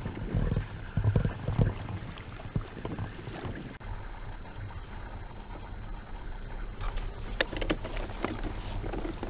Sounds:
Water vehicle

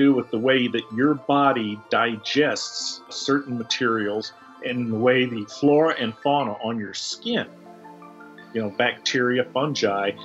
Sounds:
mosquito buzzing

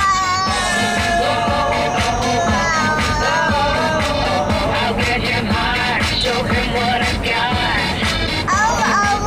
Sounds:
child singing

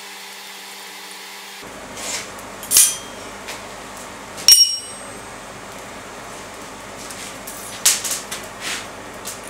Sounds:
forging swords

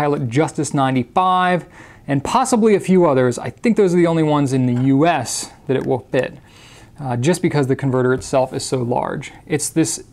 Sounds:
Speech

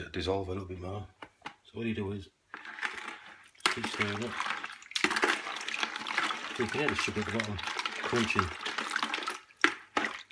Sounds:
Speech, inside a small room

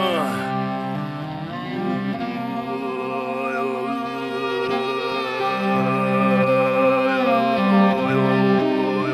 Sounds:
Violin, Music

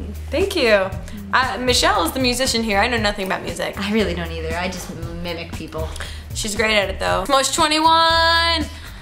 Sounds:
Music, Speech

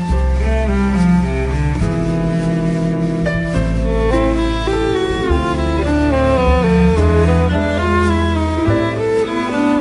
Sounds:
Music

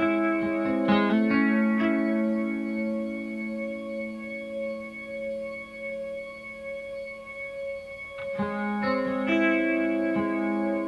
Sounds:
Music, Distortion

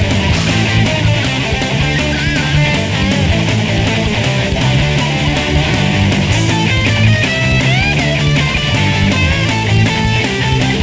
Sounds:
Music

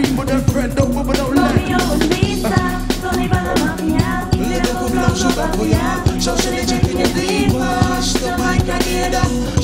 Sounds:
Funk, Singing

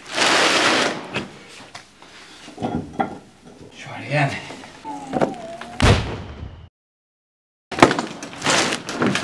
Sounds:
Speech

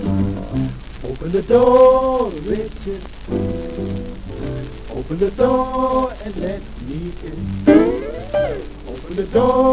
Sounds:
Music

